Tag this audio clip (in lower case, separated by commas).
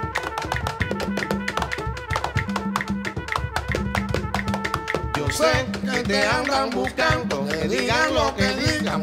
music